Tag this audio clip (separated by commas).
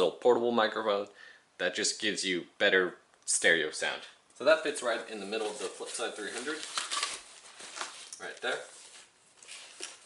Speech